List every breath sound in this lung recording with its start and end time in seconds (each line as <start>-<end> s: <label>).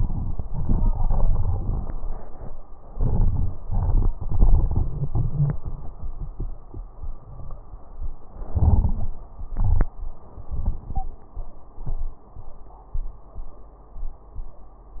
2.86-3.54 s: inhalation
2.86-3.54 s: crackles
3.59-5.57 s: exhalation
8.46-9.14 s: inhalation
8.46-9.14 s: crackles
9.52-9.97 s: exhalation
10.89-11.11 s: wheeze